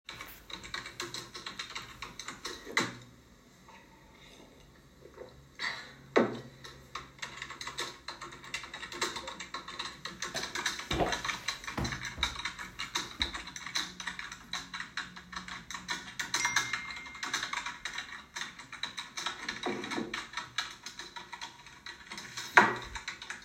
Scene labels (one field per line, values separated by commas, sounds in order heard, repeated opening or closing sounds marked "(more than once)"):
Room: office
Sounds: keyboard typing, cutlery and dishes, phone ringing